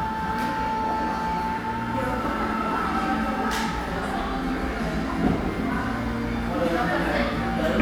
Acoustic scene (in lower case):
crowded indoor space